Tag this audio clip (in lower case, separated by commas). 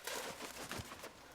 bird, animal, wild animals